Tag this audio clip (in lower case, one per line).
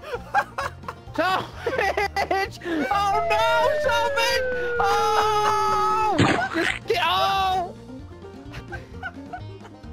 music
speech